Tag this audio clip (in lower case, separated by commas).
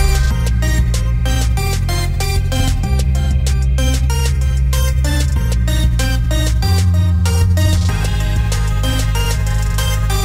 soundtrack music, independent music, music